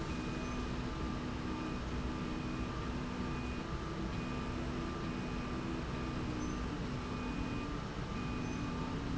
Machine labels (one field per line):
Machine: slide rail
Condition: normal